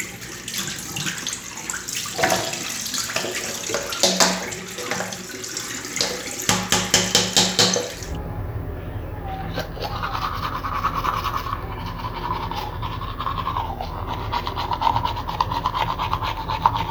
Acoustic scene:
restroom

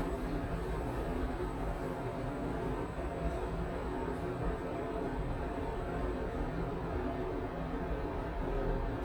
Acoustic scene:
elevator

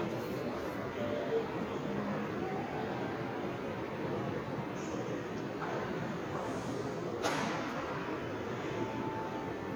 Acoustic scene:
subway station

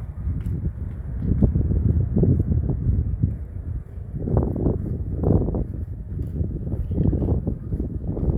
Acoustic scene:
residential area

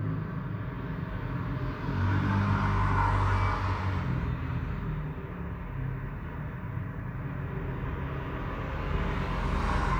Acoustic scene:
street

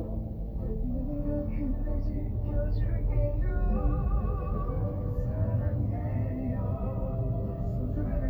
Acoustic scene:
car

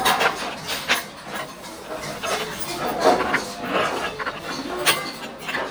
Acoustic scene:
restaurant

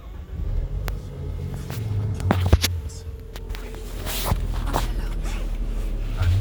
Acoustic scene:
car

